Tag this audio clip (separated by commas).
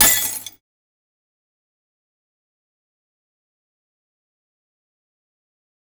Glass, Shatter